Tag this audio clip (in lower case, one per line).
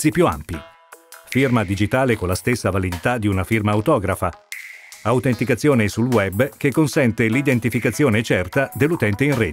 music
speech